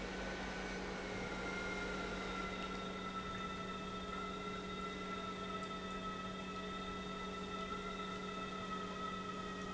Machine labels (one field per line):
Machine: pump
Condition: normal